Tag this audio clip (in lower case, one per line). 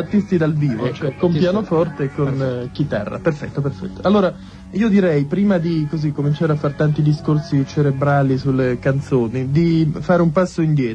speech
music